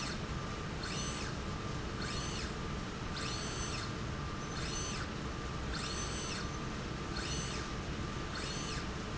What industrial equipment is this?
slide rail